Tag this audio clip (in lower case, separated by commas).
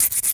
tools